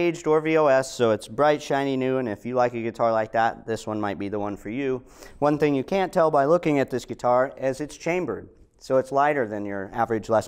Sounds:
speech

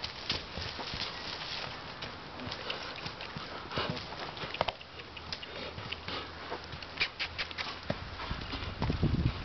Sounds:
animal, clip-clop, horse, horse clip-clop

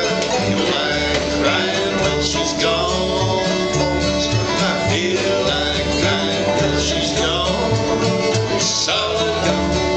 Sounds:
bluegrass, music

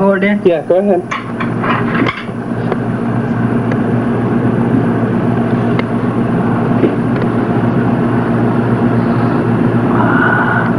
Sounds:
engine, speech

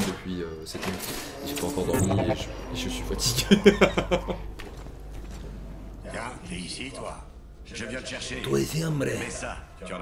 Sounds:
speech

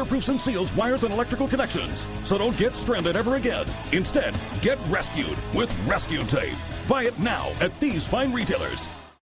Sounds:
speech, music

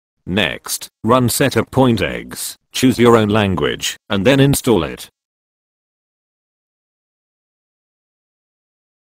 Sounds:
speech, speech synthesizer

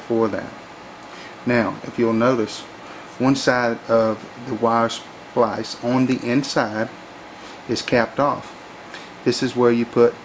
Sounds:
speech

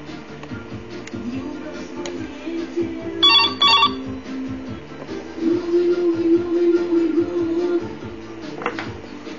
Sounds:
telephone, inside a small room, music

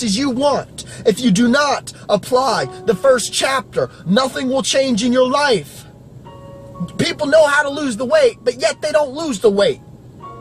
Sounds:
music, man speaking, monologue, speech

